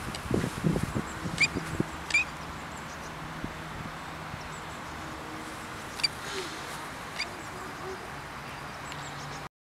A duck quacking